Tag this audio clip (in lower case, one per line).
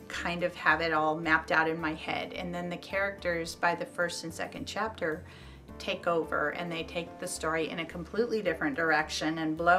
speech
music